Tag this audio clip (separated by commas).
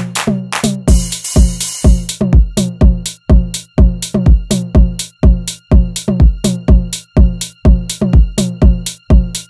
Music